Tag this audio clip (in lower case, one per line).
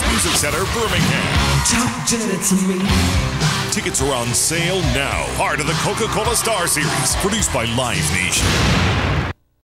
speech
music